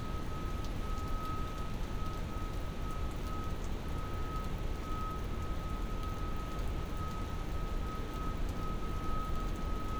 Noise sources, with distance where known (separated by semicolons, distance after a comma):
reverse beeper, far